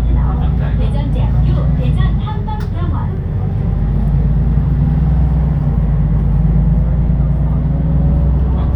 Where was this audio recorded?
on a bus